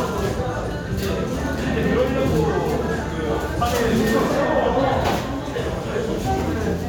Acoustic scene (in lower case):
restaurant